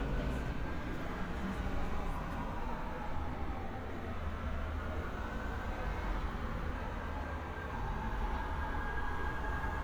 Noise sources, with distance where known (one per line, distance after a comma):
siren, far